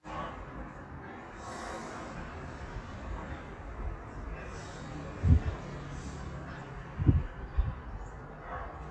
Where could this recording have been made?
in a residential area